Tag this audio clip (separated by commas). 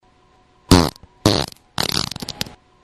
Fart